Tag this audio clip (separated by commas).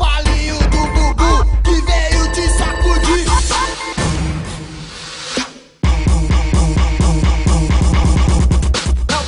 Music